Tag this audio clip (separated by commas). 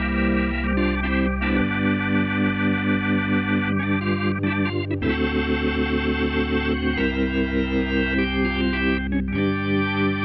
playing hammond organ